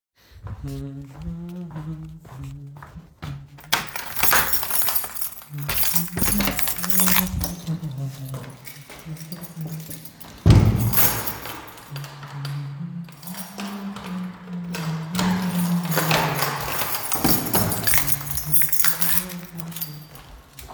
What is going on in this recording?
Phone in Hand while humming I walk to the door